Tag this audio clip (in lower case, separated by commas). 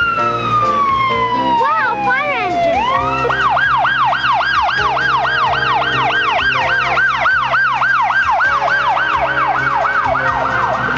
speech, music